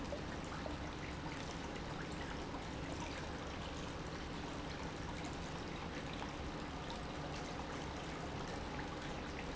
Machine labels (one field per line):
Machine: pump